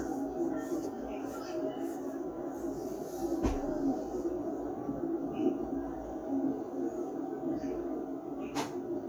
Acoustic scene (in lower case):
park